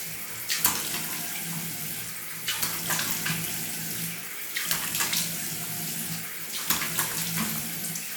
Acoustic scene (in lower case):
restroom